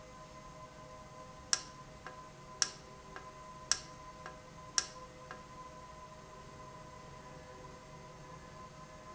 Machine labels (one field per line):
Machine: valve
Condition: normal